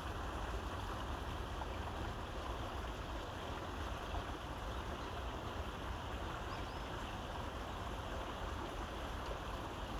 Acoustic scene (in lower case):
park